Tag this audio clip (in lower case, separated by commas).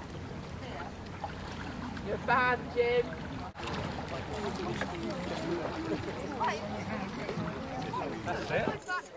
water vehicle, canoe, speech